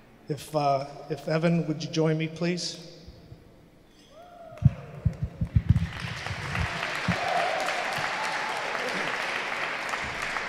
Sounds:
speech

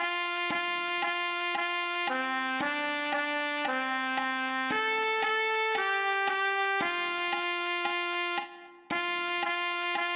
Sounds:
trumpet
music

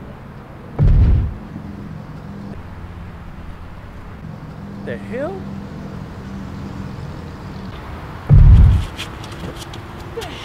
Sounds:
speech

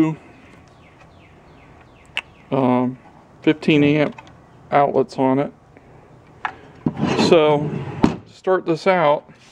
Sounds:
speech

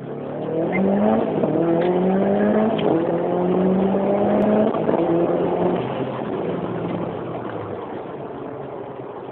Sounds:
vehicle

